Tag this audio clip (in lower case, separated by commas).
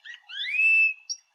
wild animals, animal, tweet, bird, bird call